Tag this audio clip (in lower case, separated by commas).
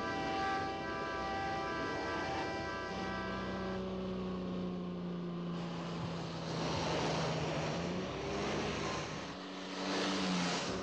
vehicle, car, outside, rural or natural